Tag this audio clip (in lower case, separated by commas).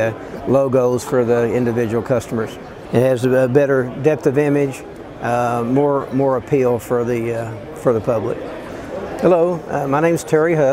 speech